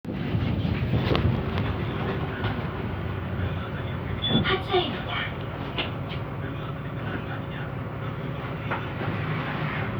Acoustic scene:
bus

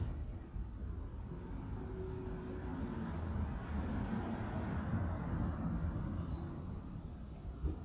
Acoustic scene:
residential area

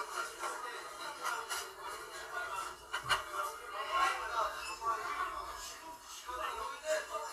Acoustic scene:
crowded indoor space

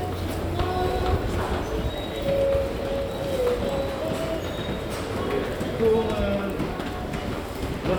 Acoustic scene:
subway station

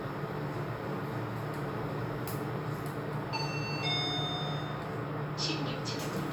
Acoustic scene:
elevator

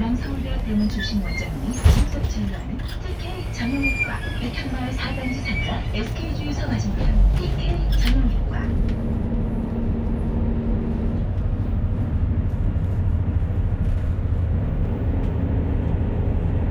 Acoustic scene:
bus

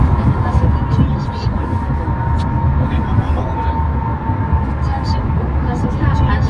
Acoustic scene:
car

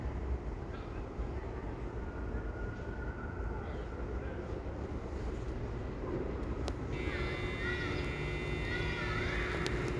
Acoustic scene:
residential area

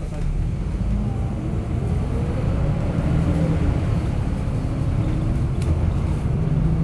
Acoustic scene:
bus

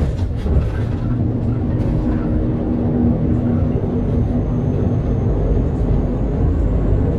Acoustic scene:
bus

